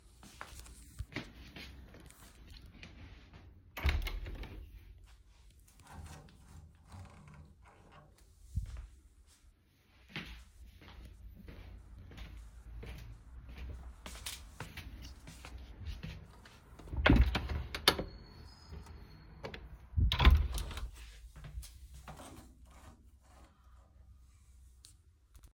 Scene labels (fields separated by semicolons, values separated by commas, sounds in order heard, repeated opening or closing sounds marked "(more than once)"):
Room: living room; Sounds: footsteps, window (more than once)